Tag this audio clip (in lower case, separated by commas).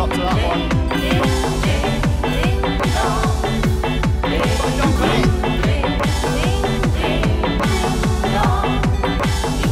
music